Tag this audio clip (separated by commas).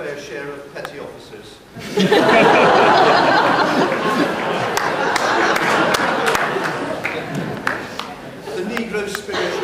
Speech